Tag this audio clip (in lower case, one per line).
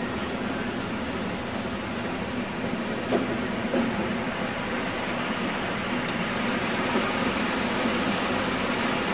train wagon
rail transport
metro
train